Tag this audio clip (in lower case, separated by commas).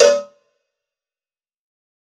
cowbell, bell